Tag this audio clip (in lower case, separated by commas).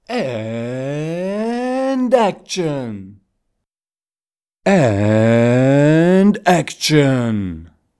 human voice, speech, man speaking